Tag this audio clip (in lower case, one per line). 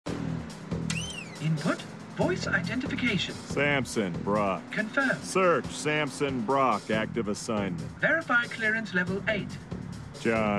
speech
music